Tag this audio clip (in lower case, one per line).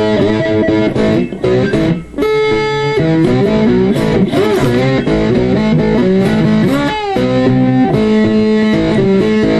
musical instrument
plucked string instrument
music
guitar
electric guitar